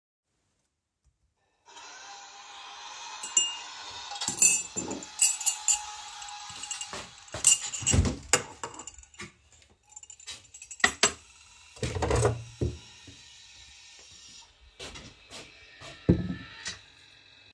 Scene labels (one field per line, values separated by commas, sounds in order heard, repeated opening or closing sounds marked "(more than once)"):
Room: kitchen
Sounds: coffee machine, cutlery and dishes, footsteps